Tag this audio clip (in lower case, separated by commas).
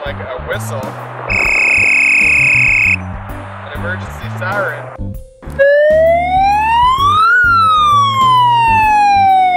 vehicle, speech, police car (siren), music